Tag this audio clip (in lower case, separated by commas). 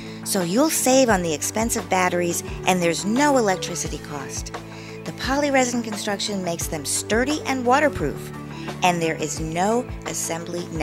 speech, music